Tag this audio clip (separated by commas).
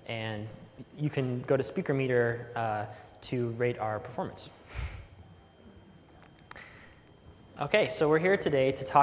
Speech